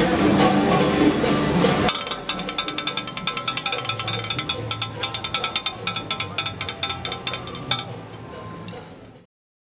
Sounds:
Music, Drum kit, Drum, Speech, Musical instrument

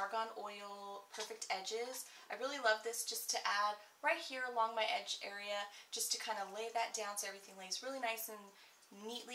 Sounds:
Speech, inside a small room

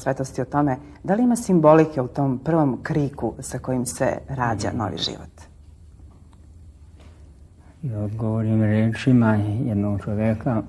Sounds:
inside a small room, Speech

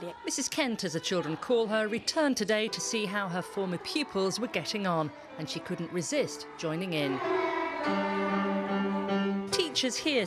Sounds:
Speech

